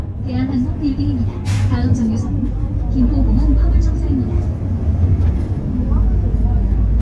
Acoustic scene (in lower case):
bus